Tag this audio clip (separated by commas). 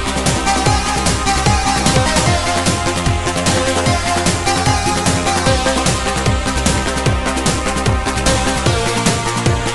Music